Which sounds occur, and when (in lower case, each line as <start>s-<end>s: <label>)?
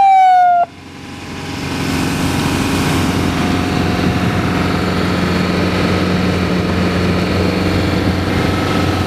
0.0s-0.7s: vehicle horn
0.0s-9.0s: vehicle